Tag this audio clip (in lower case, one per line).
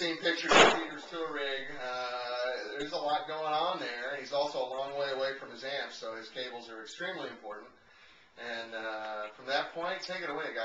speech